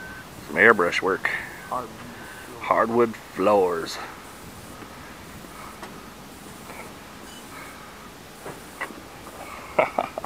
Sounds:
outside, urban or man-made, Speech

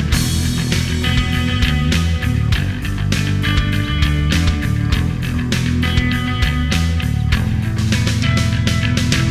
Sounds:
Music, Progressive rock

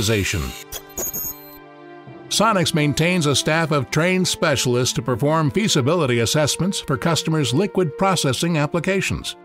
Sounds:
Music, Speech

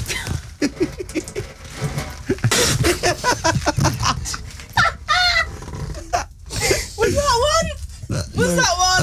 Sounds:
Speech

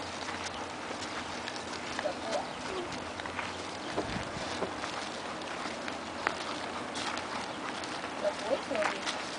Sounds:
Speech

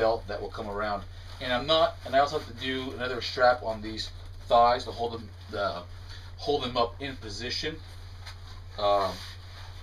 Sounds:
Speech

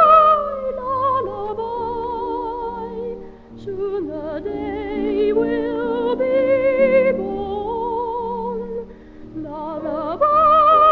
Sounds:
Lullaby, Music

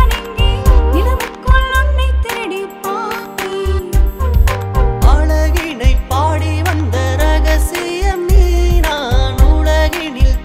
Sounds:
Dance music, Music

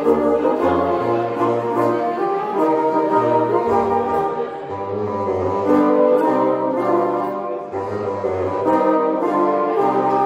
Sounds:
playing bassoon

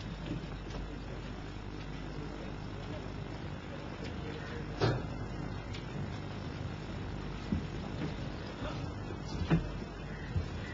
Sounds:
Male speech, Speech

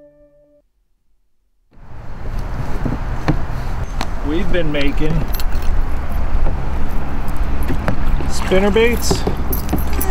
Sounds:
Speech

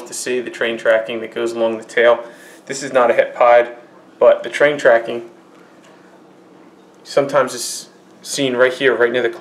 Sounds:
inside a small room, Speech

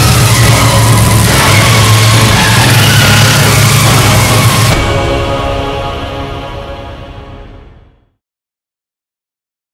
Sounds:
Music, Motor vehicle (road), Car, Vehicle

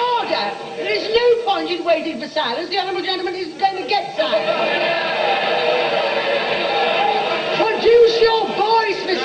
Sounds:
people booing

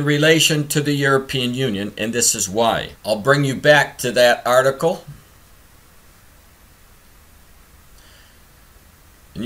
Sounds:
Speech

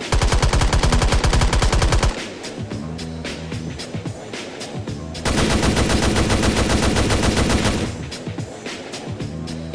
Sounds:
Music, Sound effect

